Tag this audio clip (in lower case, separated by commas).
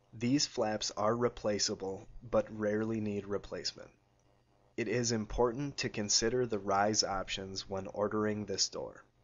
speech